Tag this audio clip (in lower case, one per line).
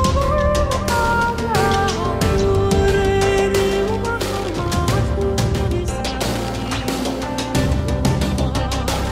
music